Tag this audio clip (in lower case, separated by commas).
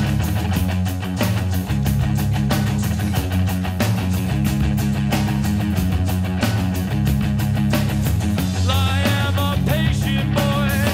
music